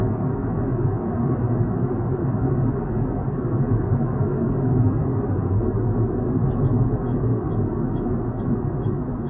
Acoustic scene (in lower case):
car